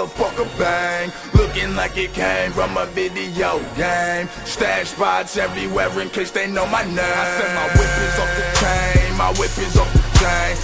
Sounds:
Music

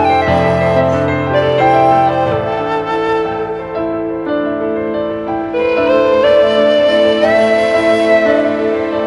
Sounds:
Music

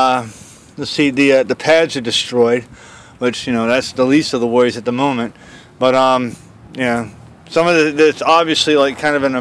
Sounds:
Speech

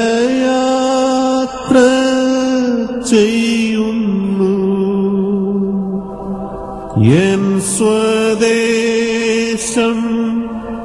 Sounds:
Music

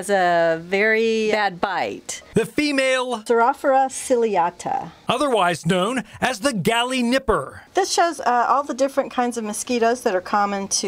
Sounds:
Speech

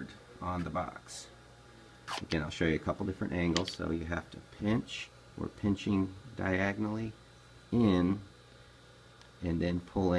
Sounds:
inside a small room, Speech, Wood

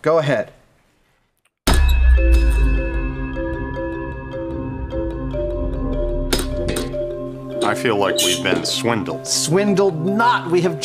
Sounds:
Music, Glass, Speech

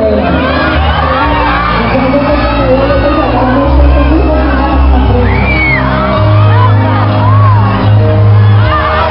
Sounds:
Music, Crowd, Bellow

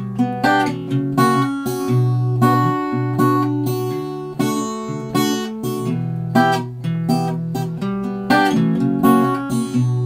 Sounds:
Guitar, Plucked string instrument, Acoustic guitar, Musical instrument, Music, Strum

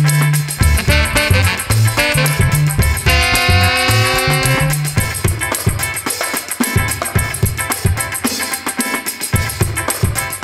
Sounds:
Music

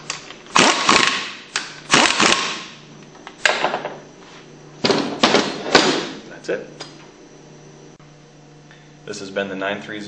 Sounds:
Speech

